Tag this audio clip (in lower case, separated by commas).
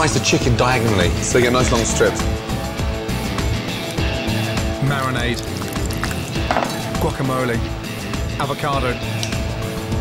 music, speech